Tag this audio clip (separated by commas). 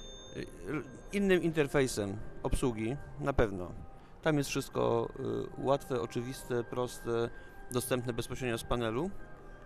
Speech